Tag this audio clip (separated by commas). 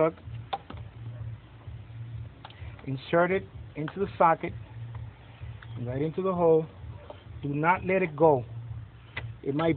Speech